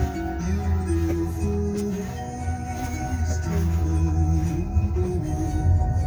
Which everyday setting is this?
car